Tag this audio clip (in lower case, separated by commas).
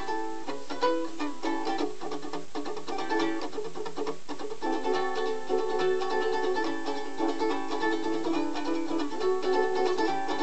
musical instrument, music, plucked string instrument, ukulele